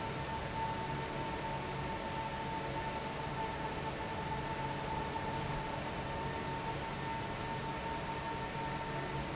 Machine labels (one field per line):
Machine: fan